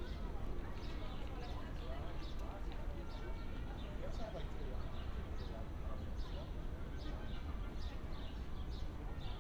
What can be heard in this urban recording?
music from an unclear source, person or small group talking